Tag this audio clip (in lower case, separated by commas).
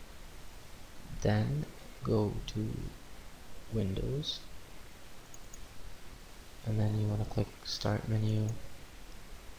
speech, clicking